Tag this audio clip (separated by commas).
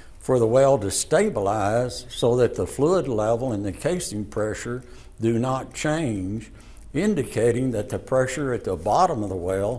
Speech